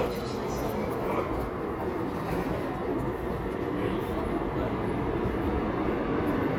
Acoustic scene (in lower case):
subway station